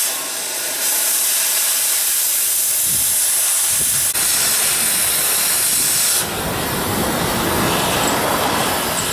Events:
[0.00, 9.12] wind
[0.01, 9.12] mechanisms
[0.20, 0.77] wind noise (microphone)
[5.27, 5.85] wind noise (microphone)
[8.45, 9.12] wind noise (microphone)

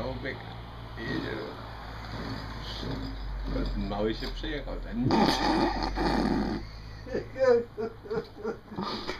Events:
[0.00, 0.39] male speech
[0.00, 9.15] conversation
[0.00, 9.15] motor vehicle (road)
[0.34, 0.42] tick
[0.93, 1.64] male speech
[0.99, 1.34] generic impact sounds
[1.98, 2.34] generic impact sounds
[2.00, 2.10] tick
[2.58, 2.84] human sounds
[2.60, 4.59] generic impact sounds
[3.39, 5.08] male speech
[5.09, 9.15] laughter

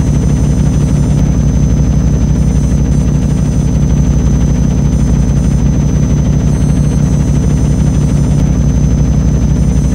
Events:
[0.00, 9.94] helicopter
[0.00, 9.94] propeller
[0.00, 9.94] video game sound

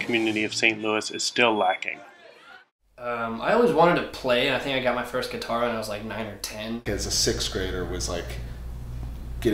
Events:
[0.00, 2.05] man speaking
[0.00, 6.83] background noise
[1.02, 1.24] car horn
[1.55, 1.78] car horn
[1.84, 2.67] speech noise
[2.94, 8.48] man speaking
[6.82, 9.53] mechanisms

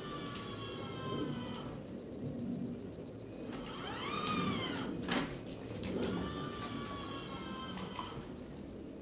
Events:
[0.00, 1.68] sliding door
[0.00, 9.01] mechanisms
[0.21, 0.47] generic impact sounds
[3.30, 3.63] generic impact sounds
[3.42, 4.90] sliding door
[4.20, 4.40] generic impact sounds
[4.96, 6.12] generic impact sounds
[5.77, 8.31] sliding door
[6.56, 6.93] generic impact sounds
[7.68, 8.04] generic impact sounds
[8.48, 8.62] tick

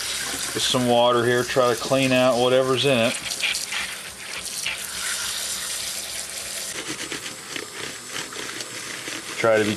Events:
[0.00, 6.70] sink (filling or washing)
[0.52, 3.15] male speech
[6.71, 9.75] mechanisms
[6.71, 9.75] surface contact
[8.54, 8.67] tick
[9.35, 9.75] male speech

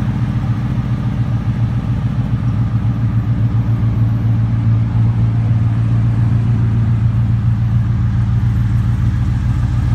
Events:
[0.00, 9.94] car

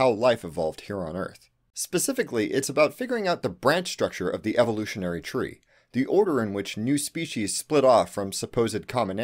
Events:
[0.00, 9.23] background noise
[0.01, 1.32] male speech
[1.34, 1.54] breathing
[1.76, 5.60] male speech
[5.66, 5.90] breathing
[5.88, 9.23] male speech

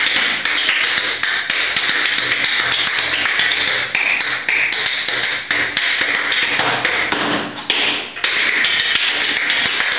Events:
[0.00, 9.95] mechanisms
[0.00, 9.95] tap dance

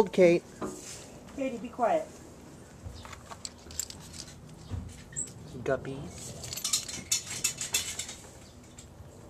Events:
[0.00, 0.38] woman speaking
[0.00, 9.25] mechanisms
[0.54, 0.79] generic impact sounds
[1.34, 2.06] woman speaking
[2.93, 5.27] generic impact sounds
[5.38, 6.01] woman speaking
[6.39, 8.44] generic impact sounds
[8.27, 8.56] bird vocalization

